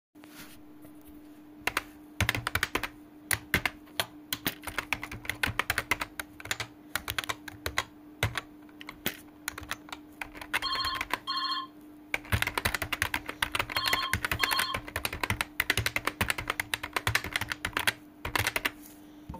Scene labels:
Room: bedroom; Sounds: keyboard typing, phone ringing

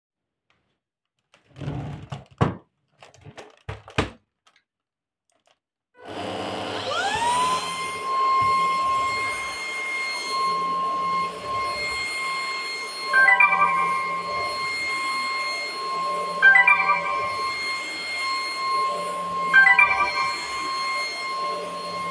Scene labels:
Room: bedroom; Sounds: vacuum cleaner, phone ringing

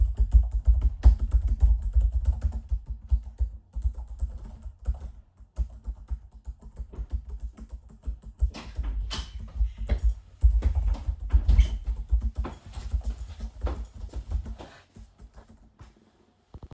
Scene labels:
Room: bedroom; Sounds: keyboard typing, door (more than once), footsteps

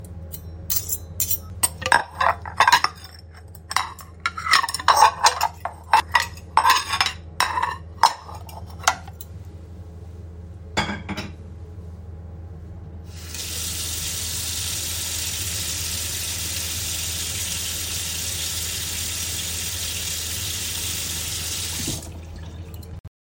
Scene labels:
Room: kitchen; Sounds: cutlery and dishes, running water

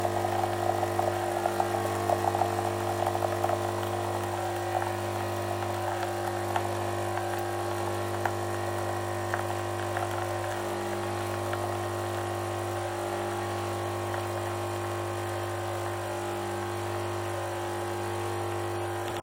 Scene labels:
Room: kitchen; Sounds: coffee machine

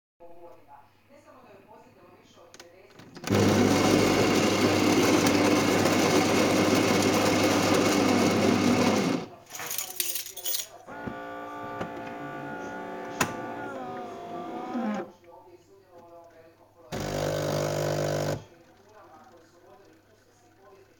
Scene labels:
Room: kitchen; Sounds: coffee machine, keys

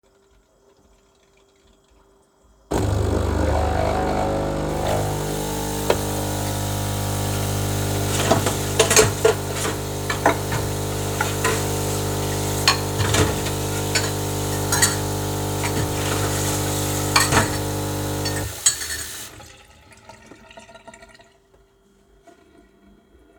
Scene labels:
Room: kitchen; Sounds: coffee machine, running water, cutlery and dishes

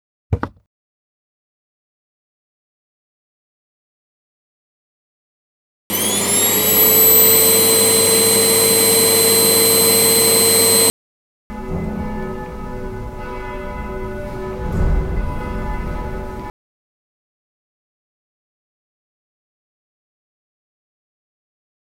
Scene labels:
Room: living room; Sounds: vacuum cleaner, bell ringing

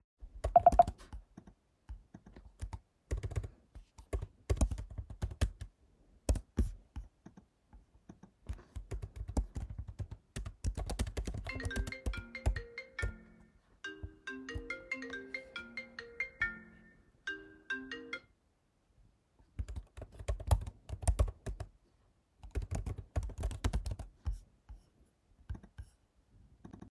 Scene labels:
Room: office; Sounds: keyboard typing, phone ringing

